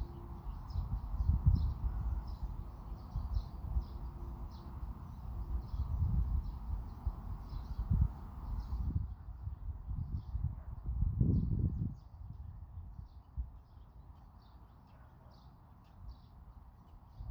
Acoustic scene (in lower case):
park